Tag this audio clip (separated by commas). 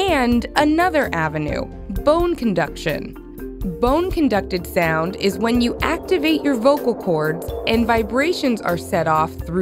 Music, Speech